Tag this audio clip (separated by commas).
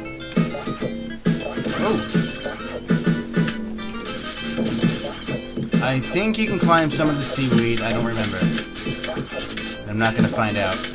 Speech, Music